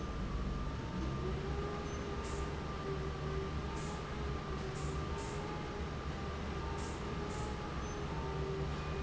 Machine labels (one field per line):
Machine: fan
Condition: normal